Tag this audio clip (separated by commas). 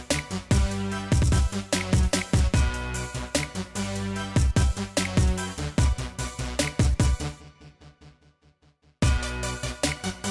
Music